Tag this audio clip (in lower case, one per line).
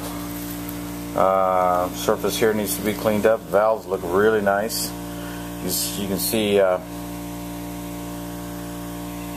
speech
engine